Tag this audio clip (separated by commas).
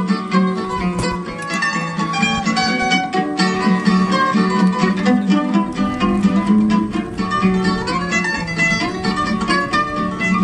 Music